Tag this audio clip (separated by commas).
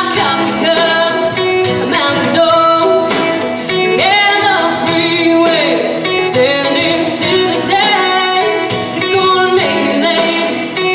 Female singing, Music